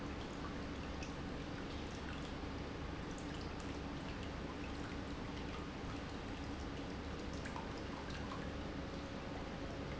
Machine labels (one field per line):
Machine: pump